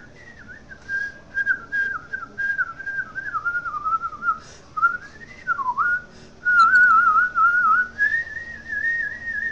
A person whistling in harmony